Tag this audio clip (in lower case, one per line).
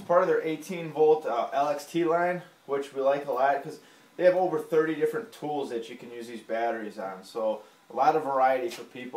speech